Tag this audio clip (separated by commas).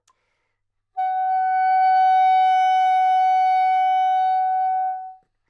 Music, Wind instrument, Musical instrument